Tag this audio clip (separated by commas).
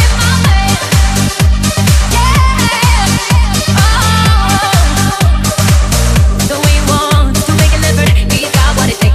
Music, Dance music